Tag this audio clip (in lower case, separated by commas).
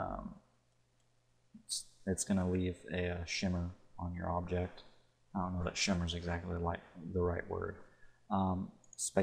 speech